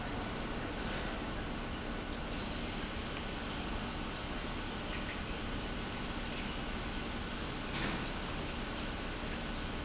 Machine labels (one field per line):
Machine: pump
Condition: normal